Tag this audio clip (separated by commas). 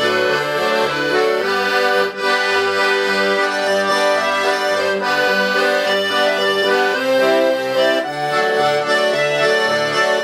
playing accordion, Musical instrument, Accordion, Music